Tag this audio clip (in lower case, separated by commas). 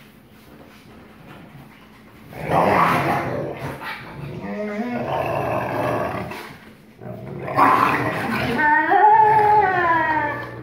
dog growling